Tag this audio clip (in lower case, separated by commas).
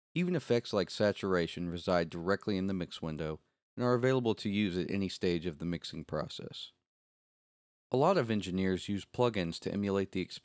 speech